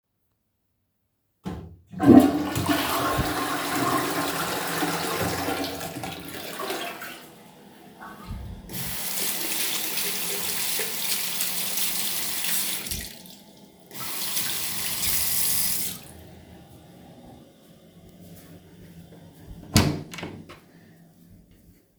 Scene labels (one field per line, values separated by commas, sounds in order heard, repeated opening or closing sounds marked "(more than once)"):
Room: bathroom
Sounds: toilet flushing, running water, door